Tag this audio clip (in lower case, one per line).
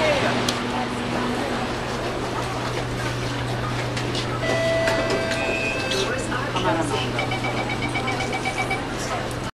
speech